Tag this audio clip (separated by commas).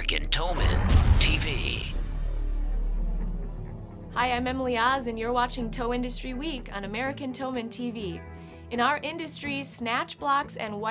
Music, Speech